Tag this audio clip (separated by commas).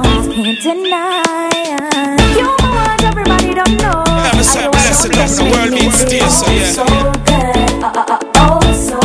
Reggae, Music